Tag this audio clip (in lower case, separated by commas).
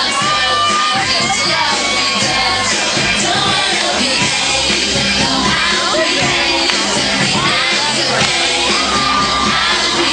choir, speech, female singing, music